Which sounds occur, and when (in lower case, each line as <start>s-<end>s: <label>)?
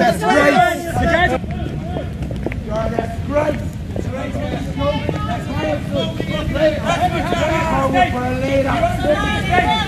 0.0s-0.8s: male speech
0.0s-9.8s: background noise
0.0s-9.8s: conversation
0.2s-0.8s: female speech
0.9s-1.3s: male speech
1.2s-1.3s: walk
1.4s-1.5s: walk
1.5s-1.7s: male speech
1.8s-2.0s: male speech
1.9s-2.0s: walk
2.2s-2.5s: walk
2.7s-3.1s: male speech
2.7s-2.8s: walk
2.9s-3.0s: walk
3.2s-3.5s: male speech
3.4s-3.5s: walk
3.9s-4.0s: walk
4.0s-4.6s: male speech
4.4s-4.6s: walk
4.7s-5.8s: female speech
5.0s-9.8s: male speech
5.1s-5.2s: walk
5.8s-5.9s: walk
6.1s-6.2s: walk
7.3s-7.3s: walk
9.0s-9.8s: female speech